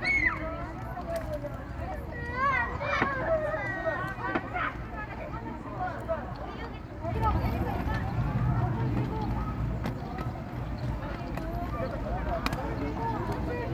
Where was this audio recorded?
in a park